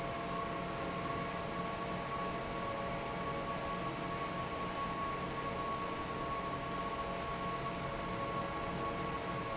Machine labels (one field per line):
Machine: fan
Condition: normal